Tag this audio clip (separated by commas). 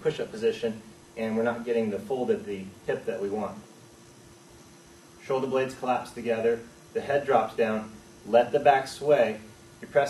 Speech